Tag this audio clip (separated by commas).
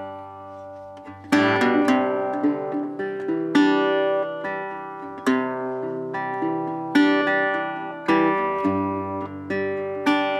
Music